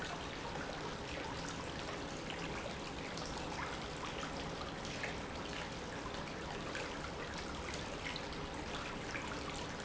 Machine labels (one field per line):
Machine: pump